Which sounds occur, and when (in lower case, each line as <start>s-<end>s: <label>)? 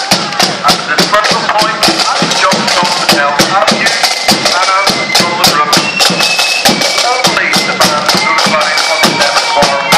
0.0s-9.9s: music
0.6s-4.0s: man speaking
4.4s-5.8s: man speaking
7.0s-9.9s: man speaking